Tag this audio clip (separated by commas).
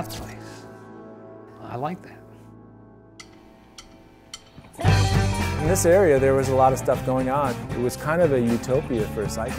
Speech, Music